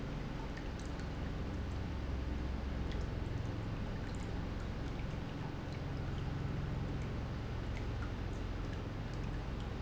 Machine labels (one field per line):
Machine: pump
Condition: normal